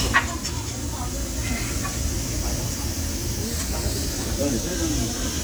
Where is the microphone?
in a crowded indoor space